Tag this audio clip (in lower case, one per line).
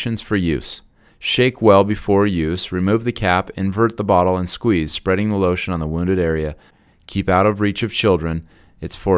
speech